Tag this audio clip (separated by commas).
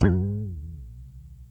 Guitar, Plucked string instrument, Music, Musical instrument